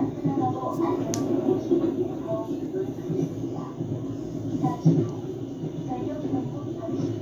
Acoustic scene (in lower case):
subway train